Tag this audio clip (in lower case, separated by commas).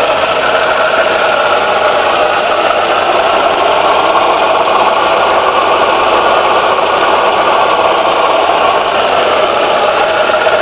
vehicle